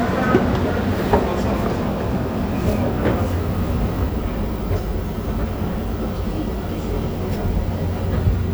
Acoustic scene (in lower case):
subway station